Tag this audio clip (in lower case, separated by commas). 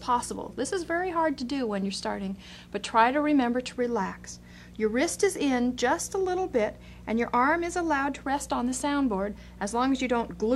speech